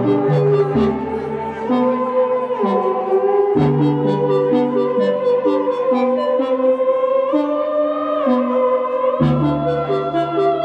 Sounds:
playing theremin

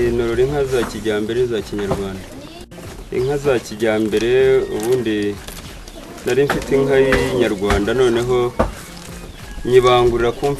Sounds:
speech

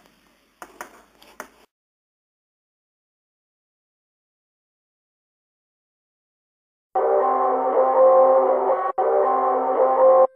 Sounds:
music

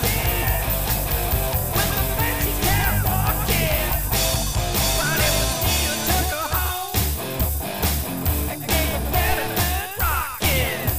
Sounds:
music

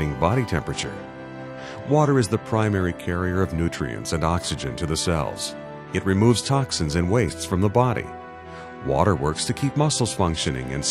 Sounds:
speech
music

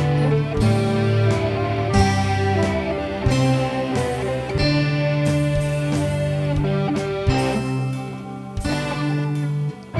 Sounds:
music

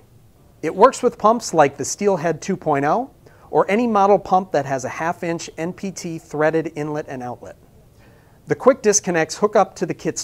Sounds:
speech

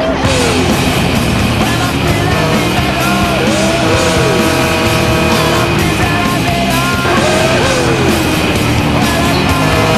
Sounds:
music
vehicle

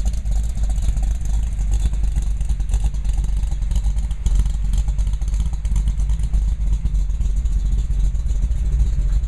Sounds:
truck
vehicle

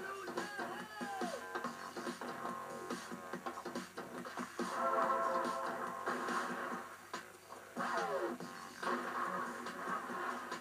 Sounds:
speech
music

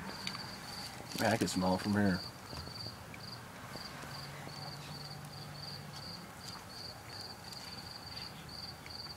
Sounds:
speech

